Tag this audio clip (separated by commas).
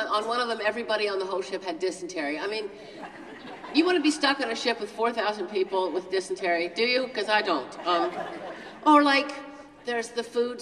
Speech